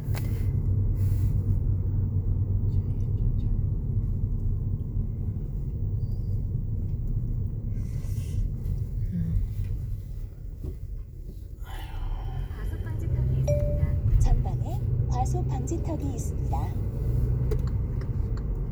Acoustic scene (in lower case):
car